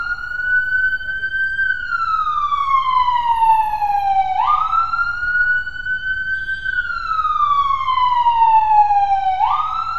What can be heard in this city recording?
siren